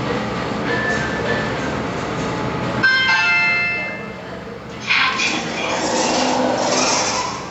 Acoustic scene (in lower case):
elevator